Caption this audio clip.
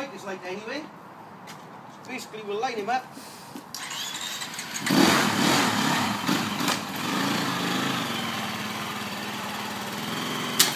Man talking, followed by an engine starting and revving